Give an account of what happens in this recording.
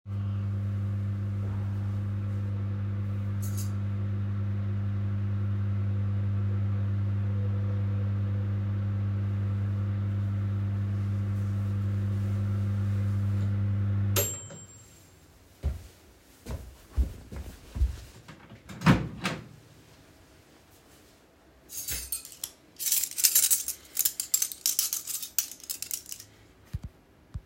My microwave had finished its time setting and beeped, and so I went to grab my food and my cutlery, which made two distinct noises, that of my footsteps and that of the cutlery.